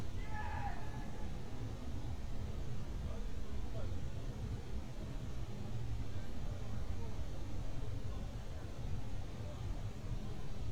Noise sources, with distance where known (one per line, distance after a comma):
unidentified human voice